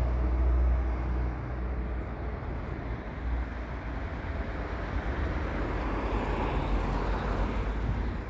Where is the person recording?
on a street